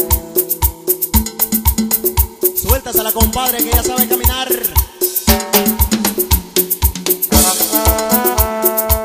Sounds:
music

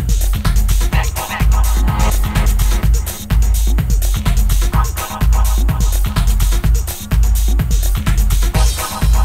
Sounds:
music

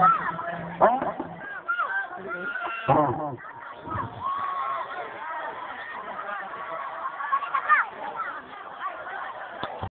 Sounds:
speech

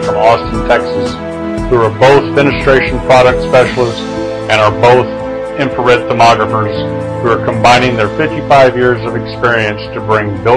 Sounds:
music
speech

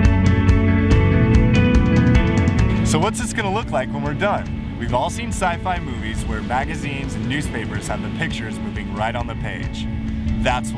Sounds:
music
speech

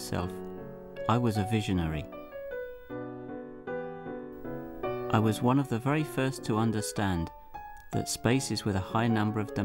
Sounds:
speech
music

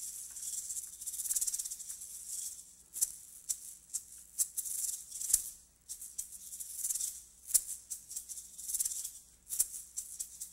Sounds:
music
percussion
jazz
maraca

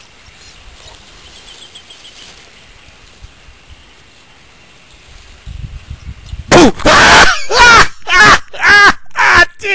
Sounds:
speech
snake

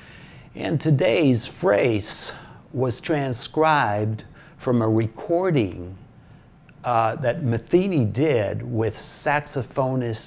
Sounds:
speech

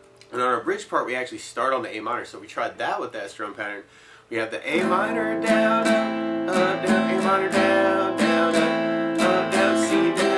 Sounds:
speech
strum
music

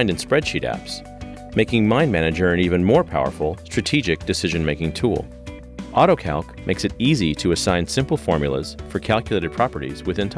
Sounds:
speech
music

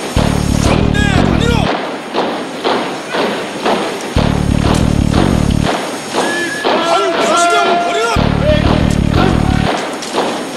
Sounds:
people marching

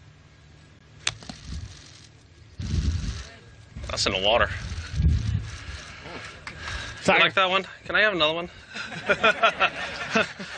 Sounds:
speech

